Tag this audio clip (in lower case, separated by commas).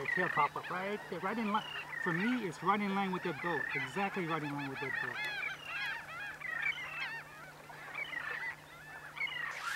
speech, outside, rural or natural